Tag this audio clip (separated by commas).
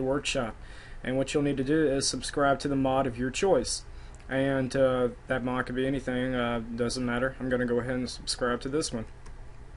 Speech